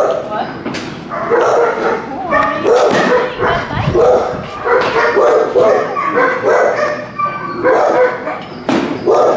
She is speaking, dogs are barking